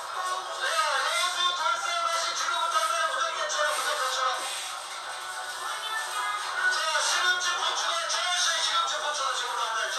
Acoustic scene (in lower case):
crowded indoor space